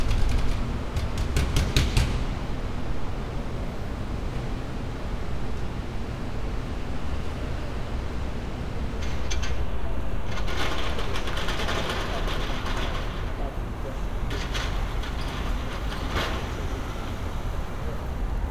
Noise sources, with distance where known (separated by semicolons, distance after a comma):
non-machinery impact